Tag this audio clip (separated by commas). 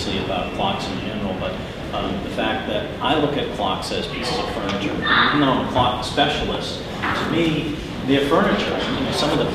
Speech